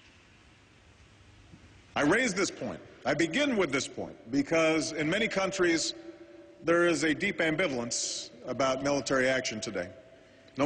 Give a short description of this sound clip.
Male giving a speech